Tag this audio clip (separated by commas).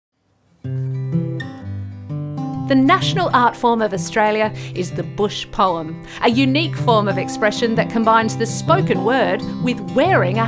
Acoustic guitar